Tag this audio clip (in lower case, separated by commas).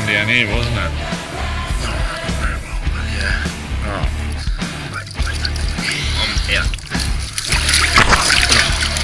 music, speech, splatter